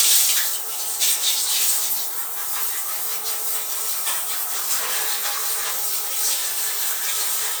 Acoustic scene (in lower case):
restroom